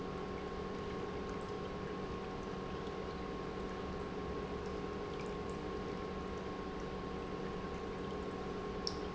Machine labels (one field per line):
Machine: pump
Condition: normal